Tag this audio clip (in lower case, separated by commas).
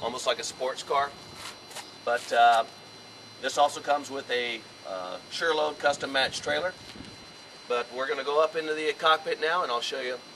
speech